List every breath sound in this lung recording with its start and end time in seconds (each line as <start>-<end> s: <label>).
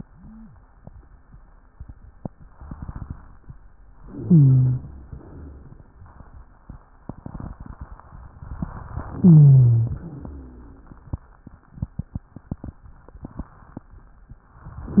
4.06-5.03 s: inhalation
4.06-5.03 s: rhonchi
5.07-5.88 s: exhalation
5.07-5.88 s: rhonchi
9.11-10.08 s: inhalation
9.11-10.08 s: rhonchi
10.21-11.16 s: exhalation
10.21-11.16 s: rhonchi